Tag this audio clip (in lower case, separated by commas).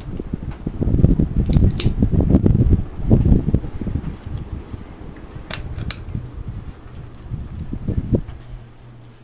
inside a small room, mechanical fan